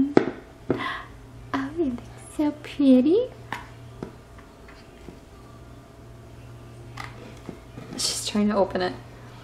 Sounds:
speech

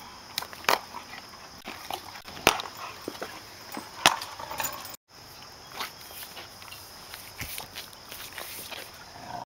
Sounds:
animal

